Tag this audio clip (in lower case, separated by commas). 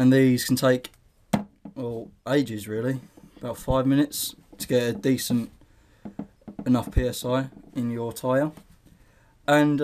speech